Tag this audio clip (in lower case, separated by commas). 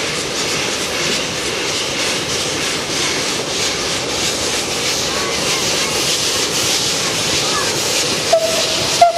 hiss, steam